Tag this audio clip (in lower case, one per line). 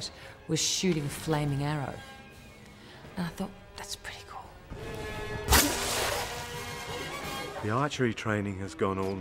arrow
speech
music